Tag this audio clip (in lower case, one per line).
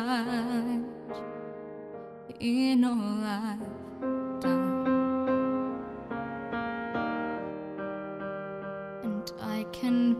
music